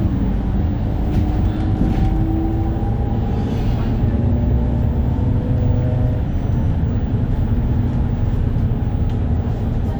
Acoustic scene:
bus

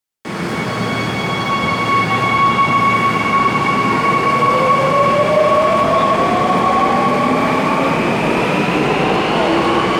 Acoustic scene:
subway station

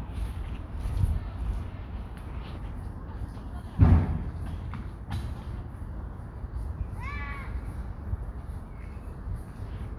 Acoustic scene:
park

